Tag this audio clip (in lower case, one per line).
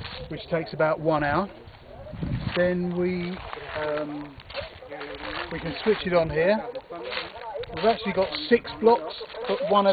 speech